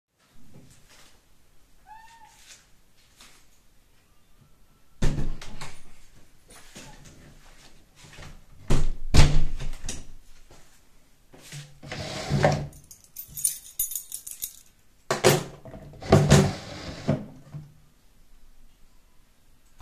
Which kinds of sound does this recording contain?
footsteps, door, wardrobe or drawer, keys